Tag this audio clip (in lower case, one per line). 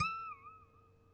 harp
music
musical instrument